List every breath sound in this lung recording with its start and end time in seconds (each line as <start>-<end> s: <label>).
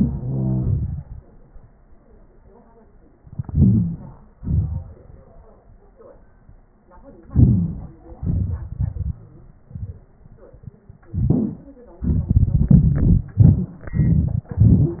3.48-4.00 s: inhalation
4.43-4.91 s: exhalation
7.29-7.78 s: inhalation
8.20-9.15 s: exhalation